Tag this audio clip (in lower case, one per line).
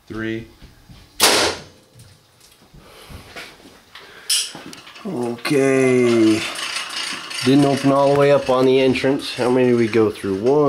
speech